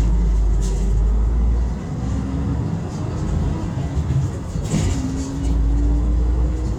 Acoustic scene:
bus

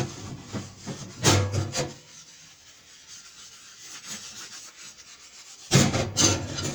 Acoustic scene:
kitchen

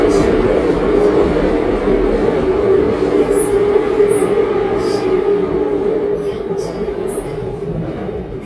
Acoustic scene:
subway train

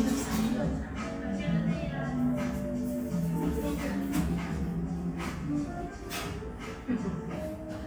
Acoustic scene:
cafe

